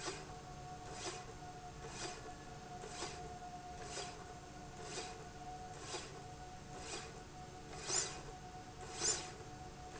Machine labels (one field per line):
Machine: slide rail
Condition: normal